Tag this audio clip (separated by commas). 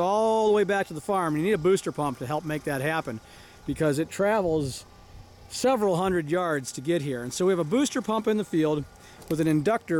Speech